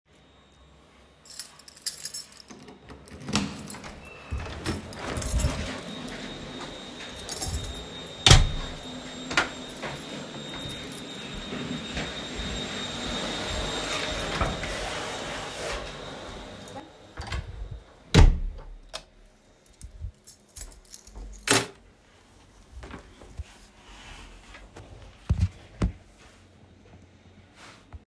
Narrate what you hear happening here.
I'm unlocking the door, entering my home, taking my shoes off and walking towards my room while someone is vacuuming in the living room, then I open the door, enter, then close it and turn my lights on. I then sit down.